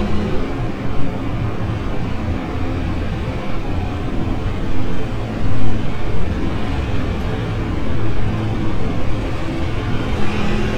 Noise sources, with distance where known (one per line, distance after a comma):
engine of unclear size, near